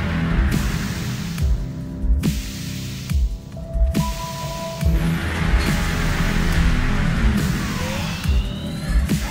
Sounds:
electronic music, dubstep, music

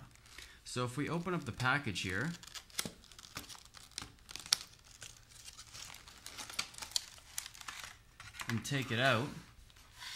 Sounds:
speech, inside a small room

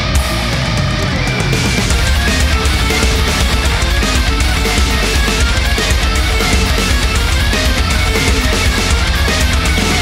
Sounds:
music, angry music

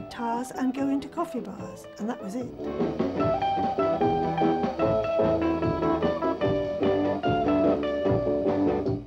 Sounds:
music, speech

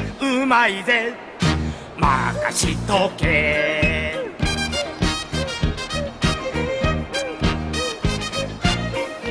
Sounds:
music

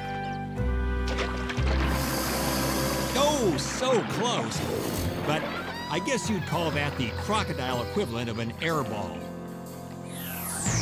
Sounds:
crocodiles hissing

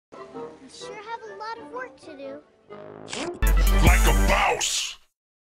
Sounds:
speech, music

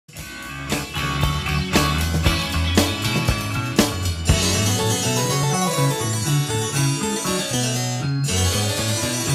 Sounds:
playing harpsichord

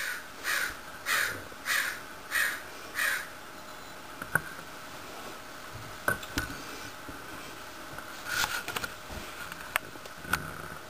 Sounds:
crow cawing

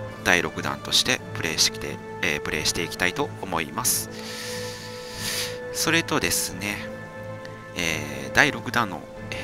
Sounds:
speech, music

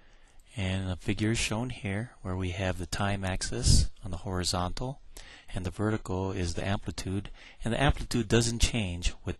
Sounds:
speech

